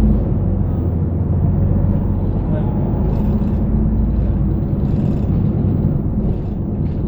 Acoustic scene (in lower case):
bus